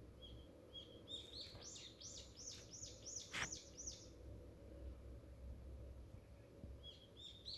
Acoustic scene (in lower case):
park